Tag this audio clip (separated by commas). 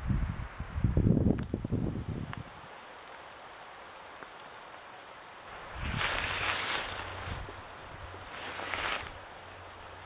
Rain on surface